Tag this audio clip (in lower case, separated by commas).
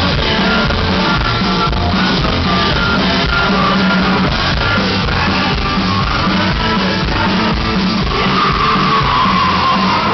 music